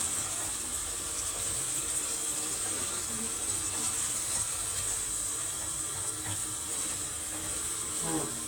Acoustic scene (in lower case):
kitchen